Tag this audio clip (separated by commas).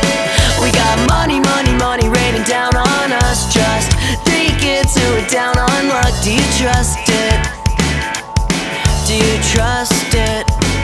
Music